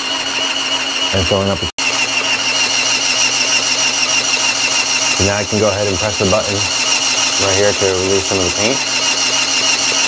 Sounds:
tools

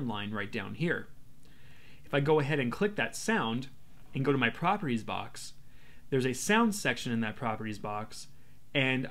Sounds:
speech

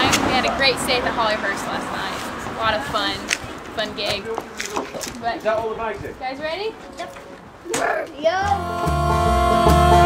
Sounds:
music
country
guitar
banjo
musical instrument
speech

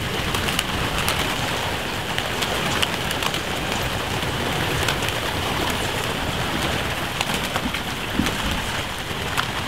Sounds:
dove

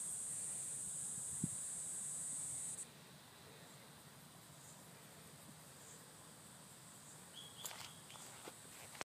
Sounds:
outside, rural or natural

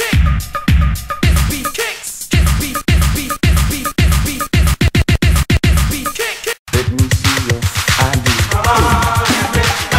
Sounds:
music of africa
afrobeat
music

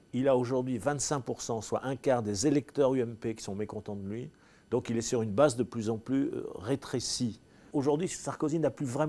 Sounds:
speech

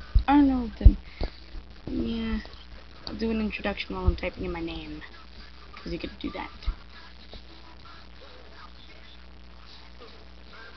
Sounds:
speech

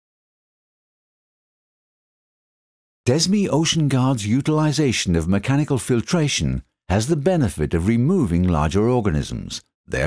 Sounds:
speech

